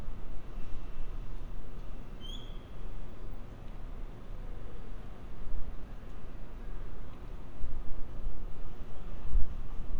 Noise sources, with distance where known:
unidentified alert signal

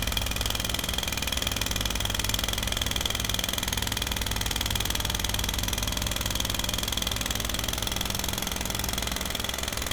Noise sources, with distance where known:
jackhammer, near

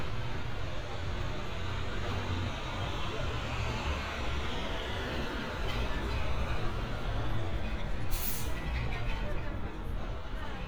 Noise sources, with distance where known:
engine of unclear size, near; person or small group talking

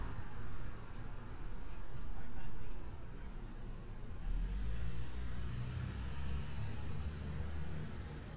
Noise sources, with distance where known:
medium-sounding engine

